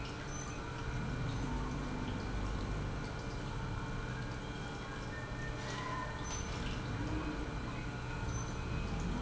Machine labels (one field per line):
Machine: pump